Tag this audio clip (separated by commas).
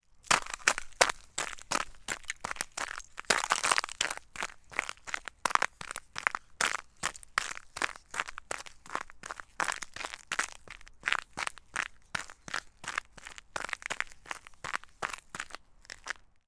Run